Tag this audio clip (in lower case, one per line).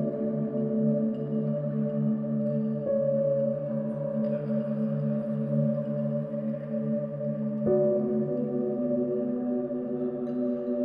music
ambient music